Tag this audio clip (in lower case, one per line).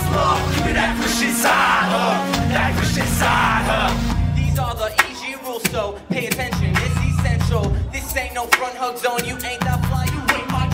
gospel music
music